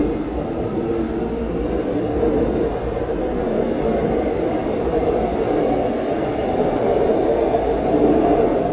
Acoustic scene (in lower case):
subway train